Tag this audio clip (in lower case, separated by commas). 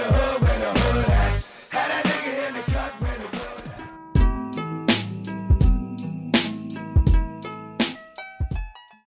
music